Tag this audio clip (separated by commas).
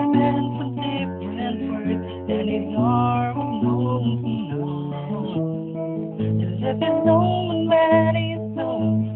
Musical instrument, Guitar, Strum, Electric guitar, Plucked string instrument, Music, Acoustic guitar